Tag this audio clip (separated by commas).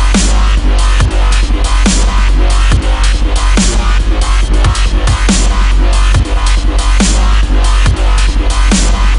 Music, Dubstep, Electronic music